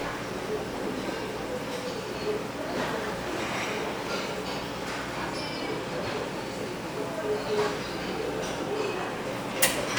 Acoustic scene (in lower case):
restaurant